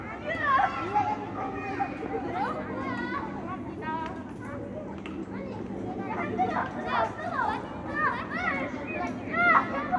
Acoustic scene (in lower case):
residential area